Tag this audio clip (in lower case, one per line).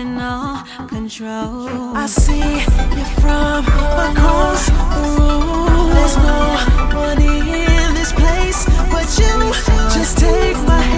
video game music
background music
music
soundtrack music